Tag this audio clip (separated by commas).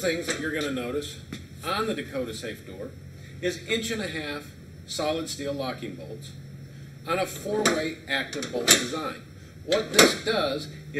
Speech, Door